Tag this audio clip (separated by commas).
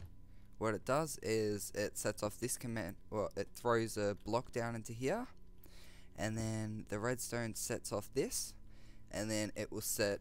Speech